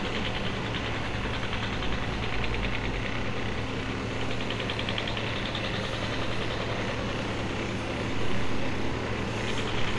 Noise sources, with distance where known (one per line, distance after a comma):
engine of unclear size, near
unidentified impact machinery, near